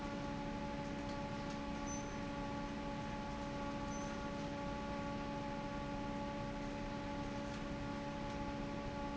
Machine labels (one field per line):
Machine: fan